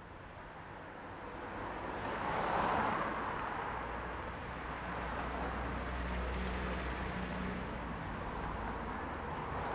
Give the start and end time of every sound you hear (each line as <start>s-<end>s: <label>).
0.0s-9.7s: car
0.0s-9.7s: car wheels rolling
5.4s-8.8s: car engine accelerating